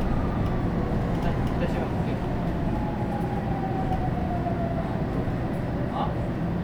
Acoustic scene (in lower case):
bus